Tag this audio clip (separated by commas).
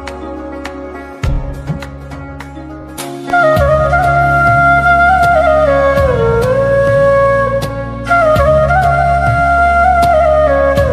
playing flute